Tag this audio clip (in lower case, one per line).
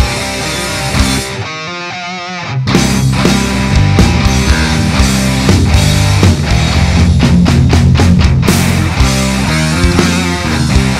music